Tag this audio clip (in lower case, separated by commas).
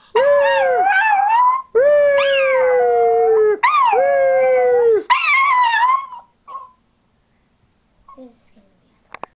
speech, yip, whimper (dog), dog, pets